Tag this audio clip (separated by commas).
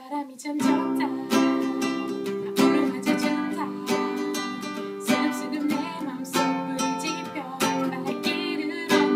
Music